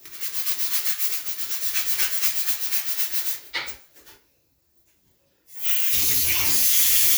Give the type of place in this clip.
restroom